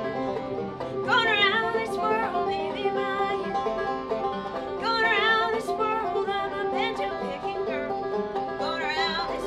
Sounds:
music

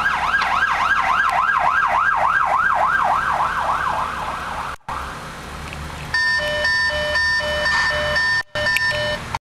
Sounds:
medium engine (mid frequency), engine, vehicle

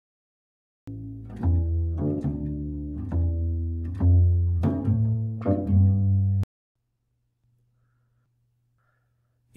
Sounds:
playing double bass

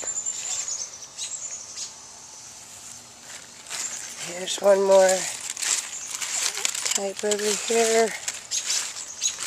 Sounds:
speech

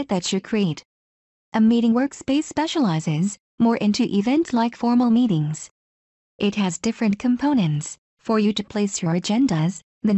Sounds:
speech

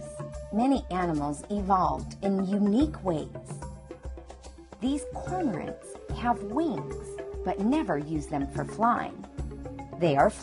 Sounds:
music, speech

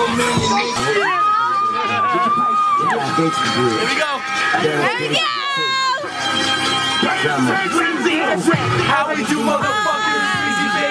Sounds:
speech, music

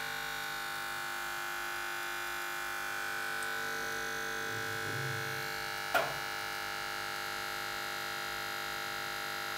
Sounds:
electric shaver

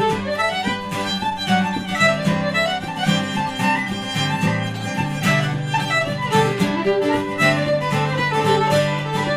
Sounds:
music, musical instrument, acoustic guitar, strum, plucked string instrument, violin, guitar

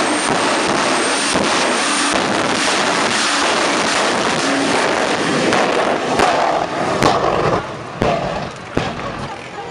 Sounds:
car passing by, vehicle, motor vehicle (road), car, speech

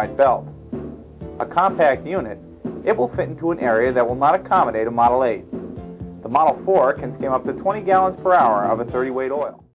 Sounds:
speech, music

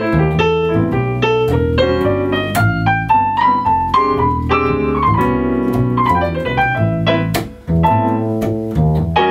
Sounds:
keyboard (musical), cello, piano, electric piano, pizzicato

